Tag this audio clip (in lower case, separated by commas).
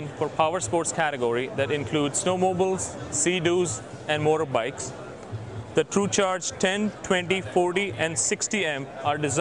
speech